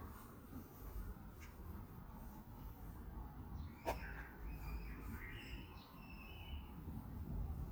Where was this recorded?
in a residential area